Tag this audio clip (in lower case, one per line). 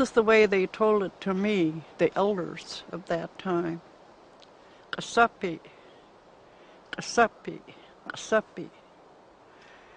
speech